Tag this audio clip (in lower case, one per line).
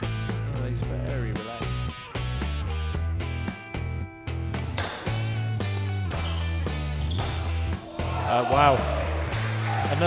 playing squash